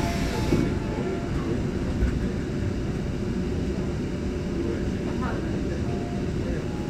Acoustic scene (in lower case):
subway train